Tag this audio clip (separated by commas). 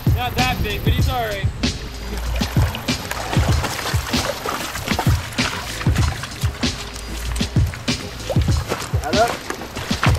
Music, Speech